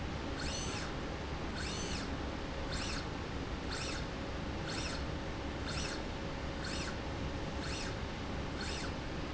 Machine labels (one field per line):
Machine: slide rail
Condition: normal